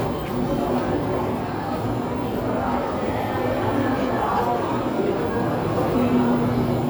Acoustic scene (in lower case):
cafe